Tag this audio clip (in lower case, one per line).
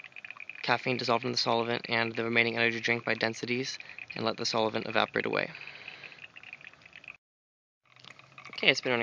speech
outside, rural or natural